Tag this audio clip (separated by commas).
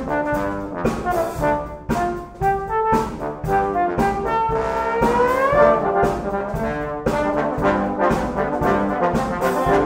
playing trombone